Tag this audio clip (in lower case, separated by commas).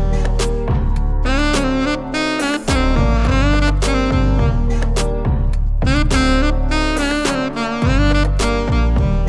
playing saxophone